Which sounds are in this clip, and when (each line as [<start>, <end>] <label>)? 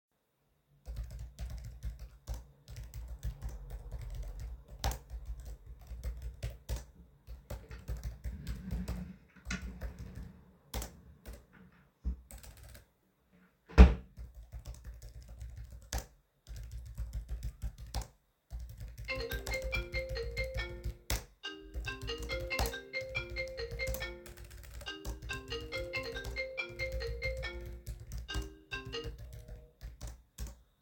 [0.82, 30.81] keyboard typing
[7.88, 9.95] wardrobe or drawer
[13.64, 14.17] wardrobe or drawer
[18.88, 29.35] phone ringing